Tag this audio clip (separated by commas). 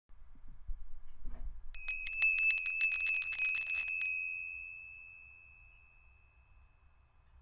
Bell